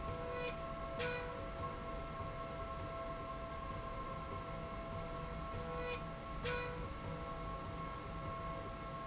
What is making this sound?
slide rail